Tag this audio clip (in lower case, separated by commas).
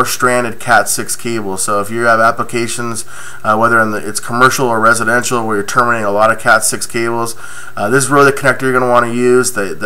speech